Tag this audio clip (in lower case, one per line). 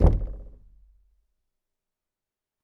knock
wood
domestic sounds
door